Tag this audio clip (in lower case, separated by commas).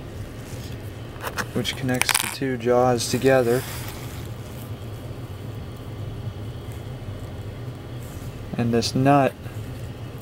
speech